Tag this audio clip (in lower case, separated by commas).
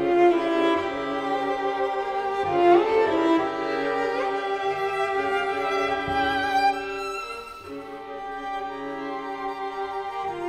playing cello, classical music, bowed string instrument, musical instrument, violin, cello, orchestra, music